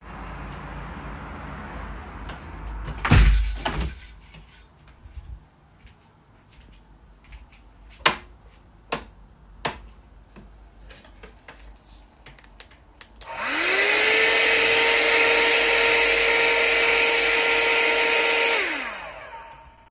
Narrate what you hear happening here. I closed the room window, walked to the light switch, turned it on, and started vacuuming.